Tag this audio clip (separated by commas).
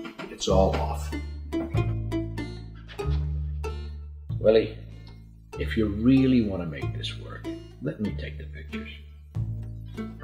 Music, Speech